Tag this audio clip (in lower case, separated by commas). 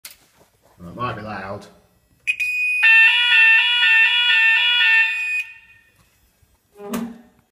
fire alarm, speech